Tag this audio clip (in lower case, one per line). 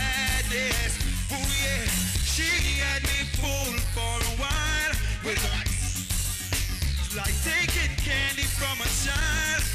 music
blues